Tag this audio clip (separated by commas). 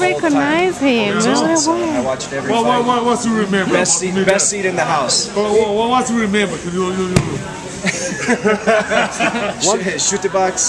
Speech